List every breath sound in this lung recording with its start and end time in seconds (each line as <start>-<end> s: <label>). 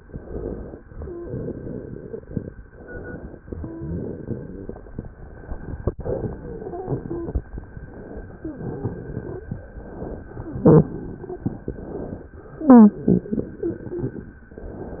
0.00-0.78 s: inhalation
0.89-2.47 s: exhalation
0.99-1.29 s: wheeze
1.18-2.47 s: crackles
2.69-3.42 s: inhalation
3.58-3.89 s: wheeze
3.60-4.92 s: exhalation
3.60-4.92 s: crackles
5.98-7.46 s: exhalation
5.98-7.46 s: crackles
7.61-8.45 s: inhalation
8.40-8.60 s: wheeze
8.40-9.53 s: exhalation
9.66-10.29 s: inhalation
10.36-11.59 s: exhalation
10.36-11.59 s: crackles
10.57-10.93 s: wheeze
11.67-12.37 s: inhalation
12.63-13.05 s: wheeze
12.69-14.36 s: exhalation